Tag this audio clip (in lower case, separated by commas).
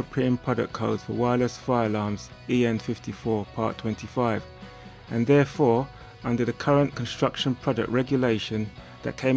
music, speech